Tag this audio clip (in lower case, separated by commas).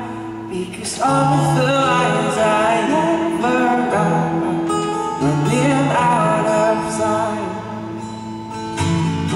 guitar, music, plucked string instrument, strum, musical instrument, acoustic guitar